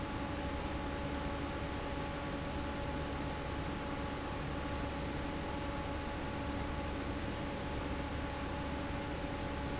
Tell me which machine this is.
fan